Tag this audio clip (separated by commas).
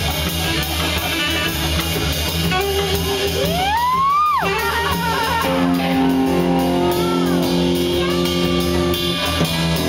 Music